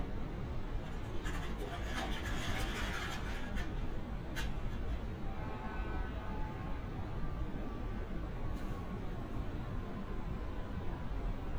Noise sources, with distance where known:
siren

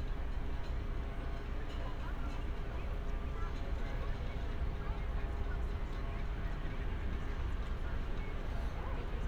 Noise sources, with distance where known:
person or small group talking, far

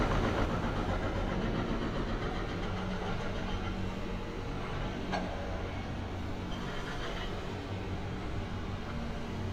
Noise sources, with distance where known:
large-sounding engine
unidentified impact machinery, far

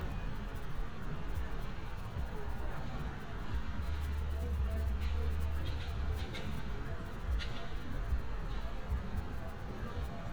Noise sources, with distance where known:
non-machinery impact, near

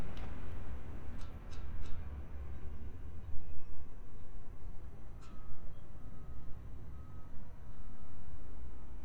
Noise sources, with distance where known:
background noise

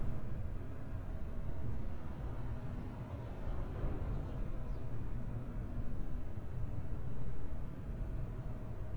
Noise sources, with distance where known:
background noise

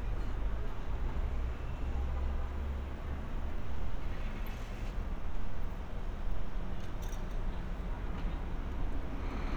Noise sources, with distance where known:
unidentified alert signal, far

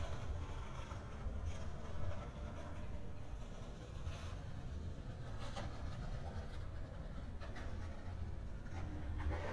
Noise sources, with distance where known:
background noise

